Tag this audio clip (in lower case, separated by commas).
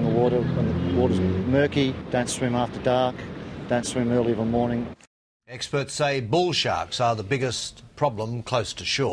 speech